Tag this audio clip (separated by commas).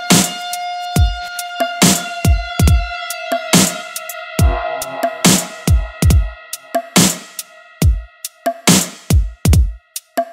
Music, Synthesizer